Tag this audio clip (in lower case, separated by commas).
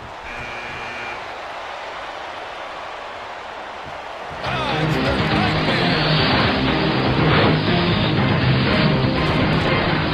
speech, music